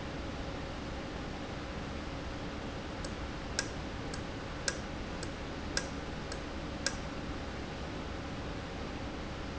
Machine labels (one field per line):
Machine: valve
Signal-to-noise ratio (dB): -6 dB